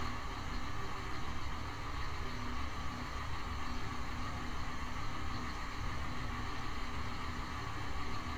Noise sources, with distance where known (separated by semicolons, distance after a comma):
engine of unclear size